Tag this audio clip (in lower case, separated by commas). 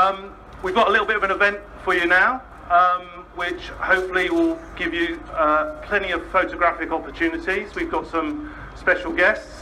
speech